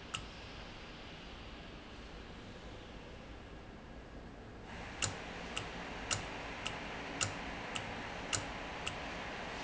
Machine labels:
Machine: valve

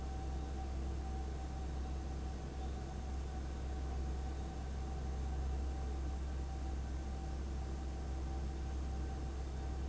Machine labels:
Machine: fan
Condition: abnormal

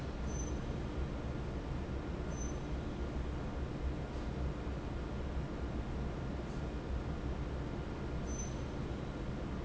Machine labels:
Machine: fan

